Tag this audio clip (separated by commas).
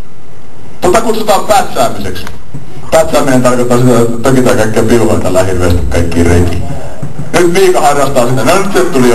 Speech